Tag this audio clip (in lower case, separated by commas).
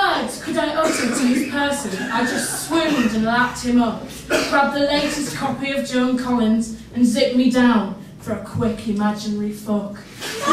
speech